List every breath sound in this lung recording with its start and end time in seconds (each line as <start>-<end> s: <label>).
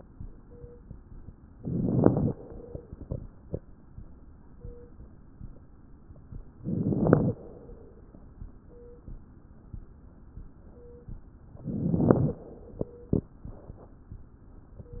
1.56-2.31 s: inhalation
1.57-2.30 s: crackles
2.30-3.40 s: exhalation
2.33-3.39 s: crackles
6.61-7.34 s: inhalation
6.61-7.34 s: crackles
7.34-8.34 s: exhalation
11.58-12.40 s: inhalation
11.58-12.40 s: crackles
12.40-13.35 s: exhalation